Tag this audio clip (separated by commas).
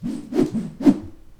Whoosh